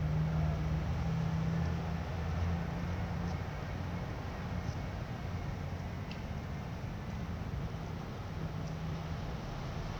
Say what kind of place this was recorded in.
residential area